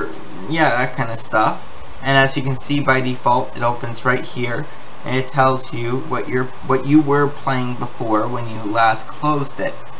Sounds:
Speech

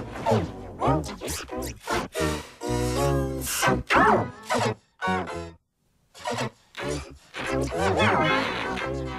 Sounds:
Music

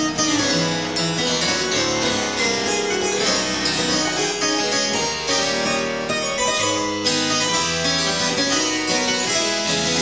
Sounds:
playing harpsichord

